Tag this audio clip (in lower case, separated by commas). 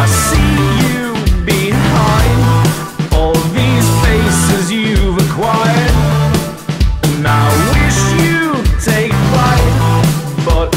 music, grunge